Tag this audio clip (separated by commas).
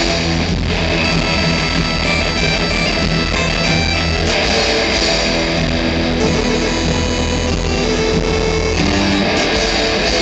Music